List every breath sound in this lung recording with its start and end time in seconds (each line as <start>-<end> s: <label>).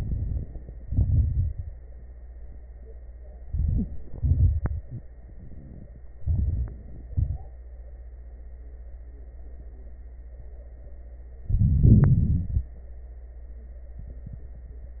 0.00-0.74 s: inhalation
0.00-0.74 s: crackles
0.82-1.69 s: exhalation
0.82-1.69 s: crackles
3.44-4.11 s: inhalation
3.44-4.11 s: crackles
4.17-5.04 s: exhalation
4.17-5.04 s: crackles
6.20-7.06 s: inhalation
6.20-7.06 s: crackles
7.09-7.65 s: exhalation
7.09-7.65 s: crackles
11.43-12.75 s: inhalation
11.43-12.75 s: crackles